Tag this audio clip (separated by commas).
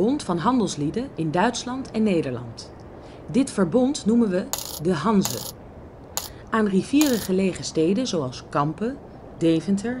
Speech